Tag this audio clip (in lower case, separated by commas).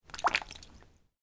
rain, raindrop, water